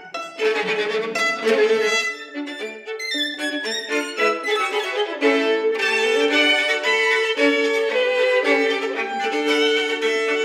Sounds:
orchestra, string section, bowed string instrument, pizzicato, musical instrument, music, violin

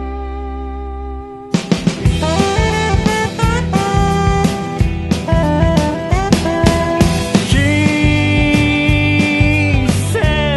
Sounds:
music

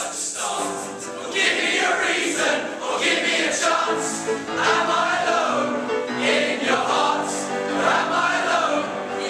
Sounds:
music, male singing, singing choir, choir

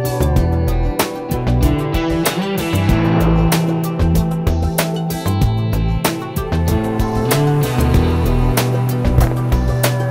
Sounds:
music

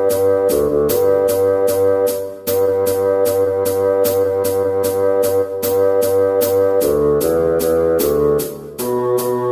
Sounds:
playing bassoon

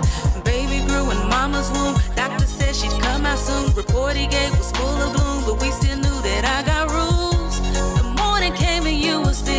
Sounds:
rhythm and blues

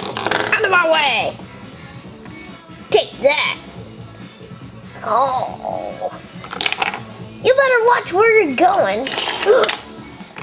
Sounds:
speech, music

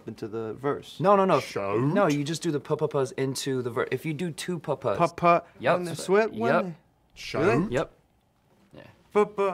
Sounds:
speech, music

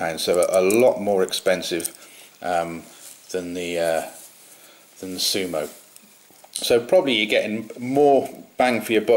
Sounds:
speech, inside a small room

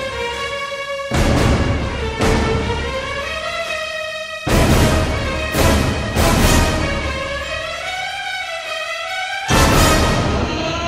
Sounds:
music, background music

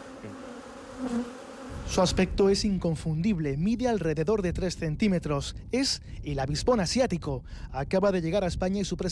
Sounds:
wasp

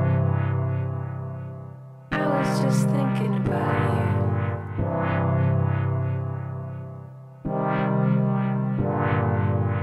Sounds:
speech, music

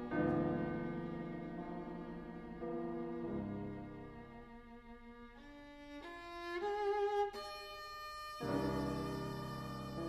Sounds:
music, bowed string instrument

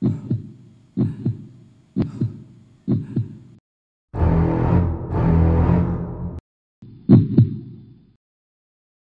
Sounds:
music

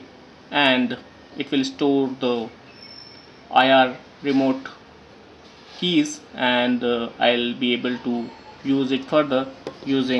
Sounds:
inside a small room, speech

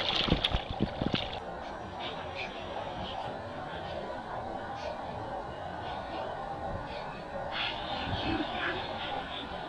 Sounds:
stream

